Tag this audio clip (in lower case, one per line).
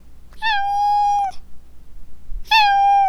domestic animals
meow
animal
cat